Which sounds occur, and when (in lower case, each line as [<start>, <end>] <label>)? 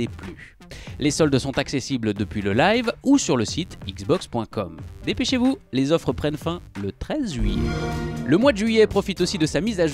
[0.00, 0.50] male speech
[0.00, 9.93] music
[0.67, 0.94] breathing
[0.94, 4.66] male speech
[5.02, 5.52] male speech
[5.68, 7.34] male speech
[7.23, 8.28] sound effect
[8.31, 9.93] male speech